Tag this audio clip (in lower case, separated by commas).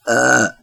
burping, human voice